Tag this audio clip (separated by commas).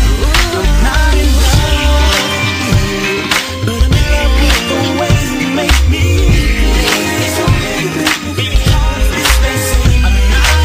Pop music, Music